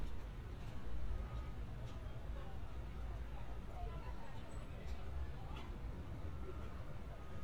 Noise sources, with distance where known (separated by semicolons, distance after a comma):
person or small group talking